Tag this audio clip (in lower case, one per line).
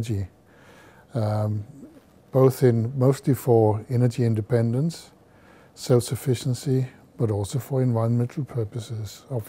speech